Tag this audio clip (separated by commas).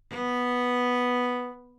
Bowed string instrument, Musical instrument, Music